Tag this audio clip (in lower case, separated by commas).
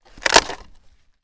wood